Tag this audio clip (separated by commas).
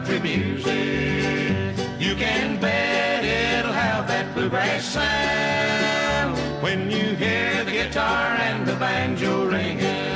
Music, Bluegrass, Country